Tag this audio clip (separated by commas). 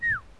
tweet, Animal, bird call, Bird, Wild animals